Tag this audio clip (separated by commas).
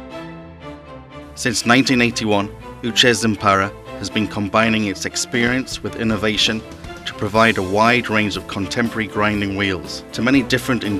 Music, Speech